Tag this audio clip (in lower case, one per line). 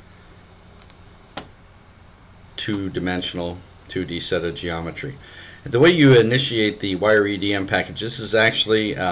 speech
computer keyboard